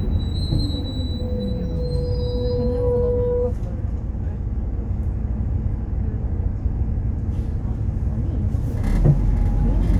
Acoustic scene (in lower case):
bus